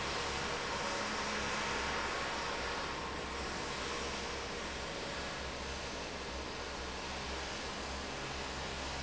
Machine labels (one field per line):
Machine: fan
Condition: abnormal